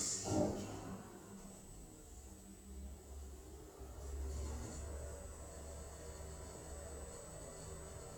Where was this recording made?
in an elevator